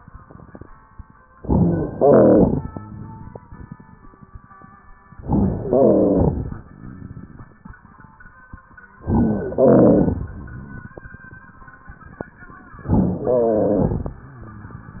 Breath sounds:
1.31-1.96 s: inhalation
1.31-1.96 s: crackles
1.96-2.68 s: exhalation
1.96-2.68 s: rhonchi
5.16-5.67 s: inhalation
5.16-5.67 s: crackles
5.69-6.53 s: exhalation
5.69-6.53 s: rhonchi
9.05-9.56 s: inhalation
9.05-9.56 s: crackles
9.58-10.42 s: exhalation
9.58-10.42 s: rhonchi
12.79-13.32 s: inhalation
12.79-13.32 s: crackles
13.32-14.15 s: exhalation
13.32-14.15 s: rhonchi

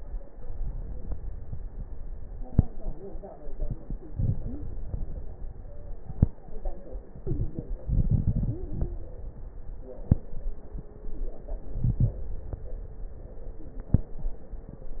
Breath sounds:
4.05-4.87 s: inhalation
4.05-4.87 s: crackles
5.61-6.45 s: stridor
7.13-7.84 s: crackles
7.14-7.87 s: inhalation
7.86-9.38 s: exhalation
7.86-9.38 s: crackles
11.65-12.36 s: inhalation
11.65-12.36 s: crackles

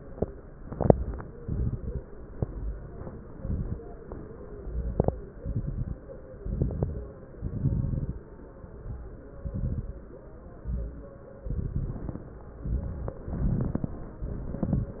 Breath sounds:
0.49-1.26 s: exhalation
0.49-1.26 s: crackles
1.41-2.02 s: inhalation
1.41-2.02 s: crackles
2.26-2.88 s: exhalation
2.26-2.88 s: crackles
3.17-3.79 s: inhalation
3.17-3.79 s: crackles
4.56-5.30 s: exhalation
4.56-5.30 s: crackles
5.38-6.00 s: inhalation
5.38-6.00 s: crackles
6.40-7.14 s: exhalation
6.40-7.14 s: crackles
7.33-8.30 s: inhalation
7.33-8.30 s: crackles
9.40-10.03 s: exhalation
9.40-10.03 s: crackles
10.62-11.25 s: inhalation
10.62-11.25 s: crackles
11.46-12.31 s: exhalation
11.46-12.31 s: crackles
12.64-13.30 s: inhalation
12.64-13.30 s: crackles
13.34-14.00 s: exhalation
13.34-14.00 s: crackles
14.23-15.00 s: inhalation
14.23-15.00 s: crackles

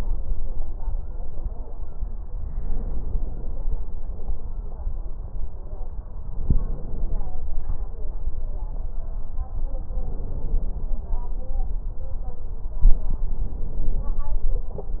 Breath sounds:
2.43-3.80 s: inhalation
6.25-7.47 s: inhalation
9.94-11.09 s: inhalation
12.86-14.25 s: inhalation
12.86-14.25 s: crackles

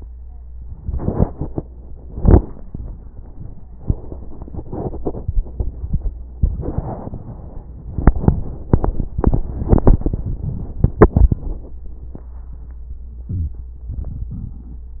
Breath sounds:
13.19-13.92 s: inhalation
13.27-13.64 s: wheeze
13.91-14.98 s: exhalation
13.91-14.98 s: crackles

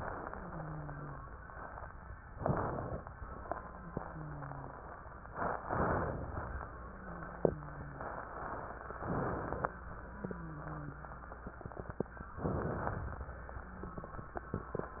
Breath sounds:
0.00-1.27 s: wheeze
2.33-3.13 s: inhalation
3.74-4.82 s: wheeze
5.63-6.43 s: inhalation
6.75-8.06 s: wheeze
8.97-9.77 s: inhalation
9.98-11.29 s: wheeze
12.39-13.34 s: inhalation
13.62-14.57 s: wheeze

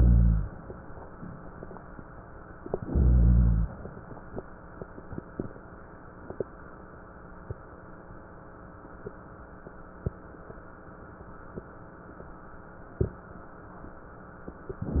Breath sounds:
0.00-0.57 s: inhalation
2.58-3.77 s: inhalation

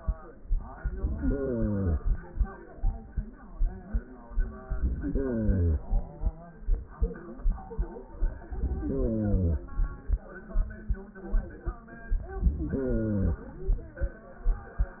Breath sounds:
0.73-2.34 s: inhalation
4.64-6.25 s: inhalation
8.35-9.97 s: inhalation
11.99-13.60 s: inhalation

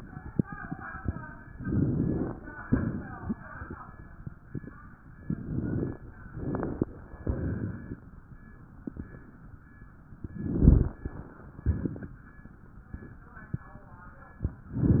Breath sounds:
1.52-2.34 s: inhalation
2.66-3.34 s: exhalation
5.24-6.05 s: inhalation
6.28-6.91 s: inhalation
7.21-7.97 s: exhalation
10.36-11.12 s: inhalation
11.63-12.18 s: exhalation

